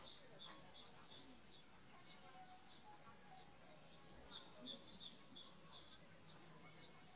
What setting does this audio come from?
park